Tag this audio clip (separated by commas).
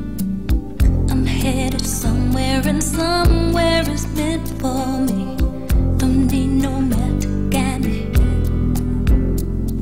Music